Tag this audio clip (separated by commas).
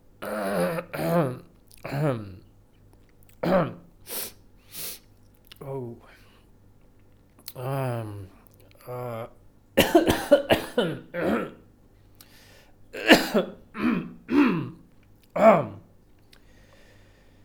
Cough, Respiratory sounds